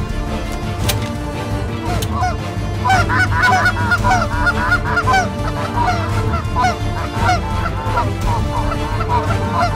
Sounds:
goose honking, Music, Honk

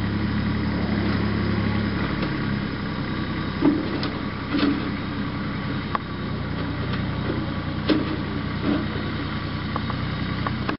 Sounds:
Vehicle

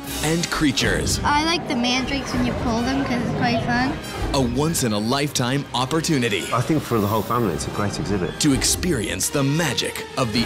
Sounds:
Speech, Music

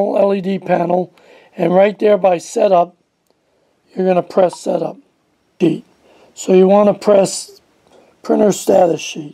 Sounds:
Speech

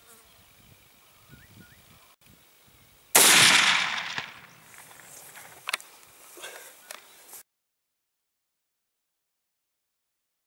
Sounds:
outside, rural or natural, Silence, Animal

